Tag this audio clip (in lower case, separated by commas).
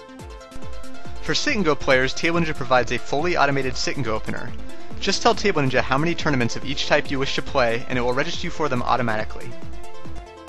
music, speech